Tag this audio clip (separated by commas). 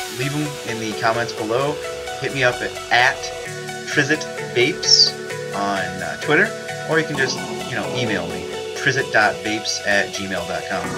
Speech, Music